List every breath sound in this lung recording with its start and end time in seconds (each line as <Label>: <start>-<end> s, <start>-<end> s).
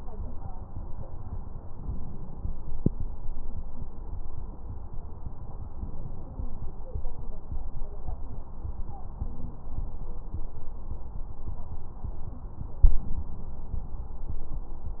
Inhalation: 1.76-2.68 s, 5.77-6.70 s